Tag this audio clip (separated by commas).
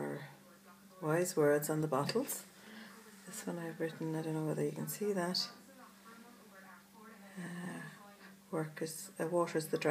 Breathing, Speech